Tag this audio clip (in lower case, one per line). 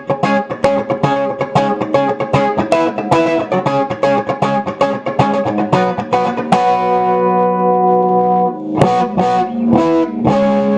music